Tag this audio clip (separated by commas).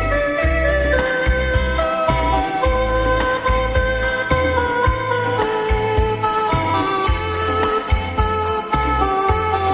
Music, Theme music